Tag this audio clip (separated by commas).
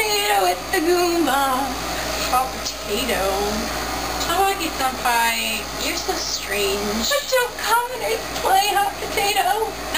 Speech